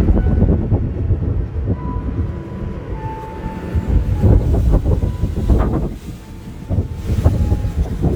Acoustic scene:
park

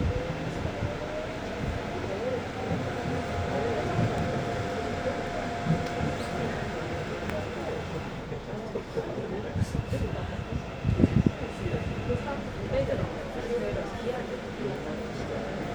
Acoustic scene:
subway train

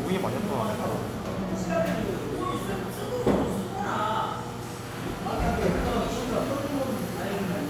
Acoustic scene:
cafe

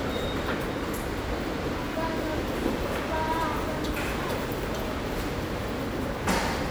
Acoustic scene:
subway station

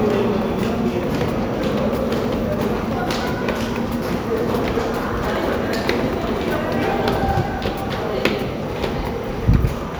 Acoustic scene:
subway station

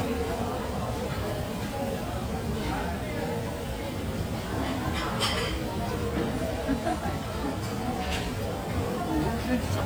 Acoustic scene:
cafe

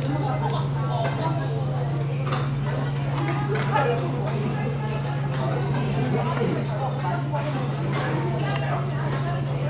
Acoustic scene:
restaurant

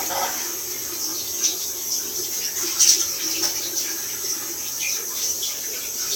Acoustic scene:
restroom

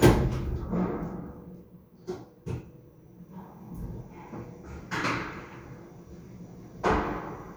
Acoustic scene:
elevator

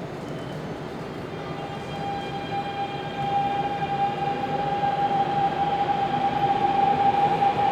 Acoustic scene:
subway station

